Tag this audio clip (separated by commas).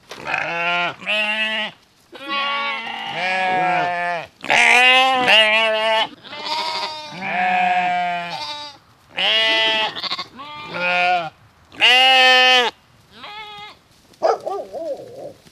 livestock, Animal